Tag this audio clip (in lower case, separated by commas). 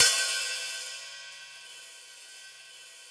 music, hi-hat, percussion, cymbal, musical instrument